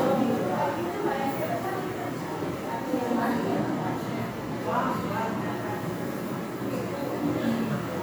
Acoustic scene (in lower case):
crowded indoor space